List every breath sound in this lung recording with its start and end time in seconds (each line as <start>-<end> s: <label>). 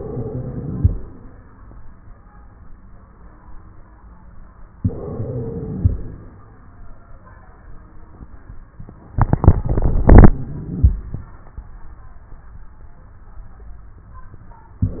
0.00-1.04 s: inhalation
0.00-1.04 s: wheeze
4.79-6.21 s: inhalation
4.79-6.21 s: wheeze
9.75-10.92 s: inhalation
9.75-10.92 s: wheeze
14.80-15.00 s: inhalation
14.80-15.00 s: wheeze